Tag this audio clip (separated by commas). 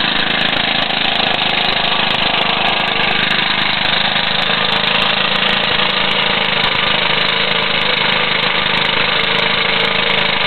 Medium engine (mid frequency), Engine, Idling